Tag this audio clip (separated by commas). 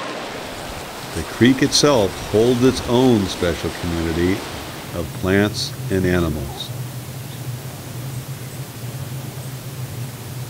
Speech